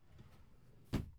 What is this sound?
wooden drawer opening